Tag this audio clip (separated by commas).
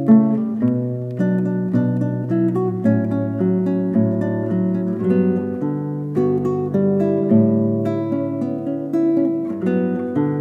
Music, Guitar